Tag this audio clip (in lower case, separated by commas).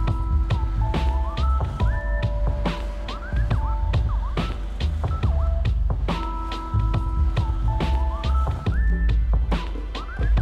music